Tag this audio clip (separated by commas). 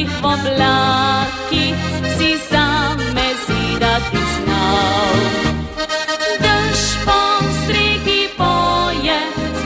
Music